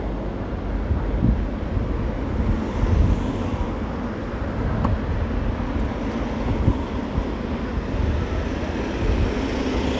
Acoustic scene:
street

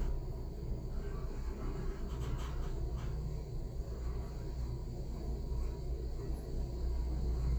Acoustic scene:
elevator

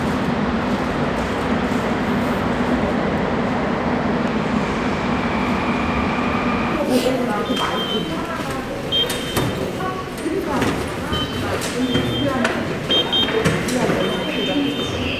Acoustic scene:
subway station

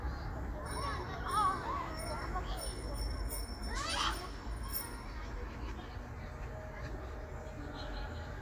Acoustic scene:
park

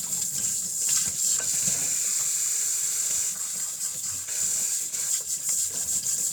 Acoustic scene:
kitchen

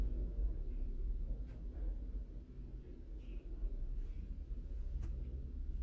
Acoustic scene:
elevator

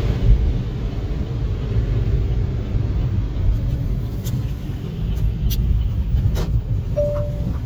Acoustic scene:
car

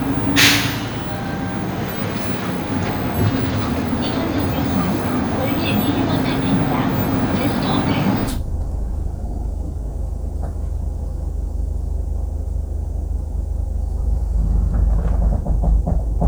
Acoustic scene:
bus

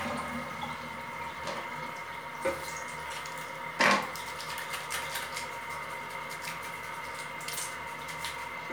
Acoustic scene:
restroom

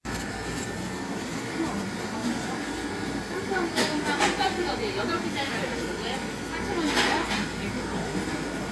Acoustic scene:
cafe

